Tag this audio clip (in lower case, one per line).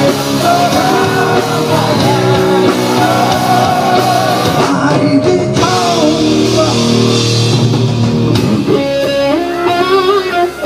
music
rock music